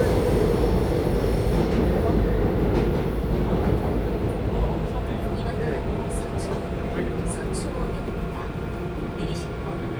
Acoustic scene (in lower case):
subway train